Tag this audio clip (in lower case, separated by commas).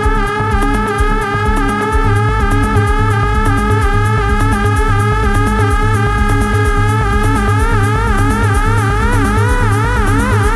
electronic music, trance music, music